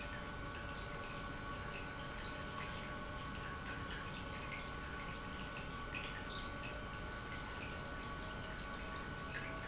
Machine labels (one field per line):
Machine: pump